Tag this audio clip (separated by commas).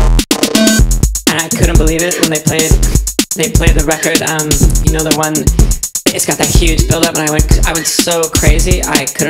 Music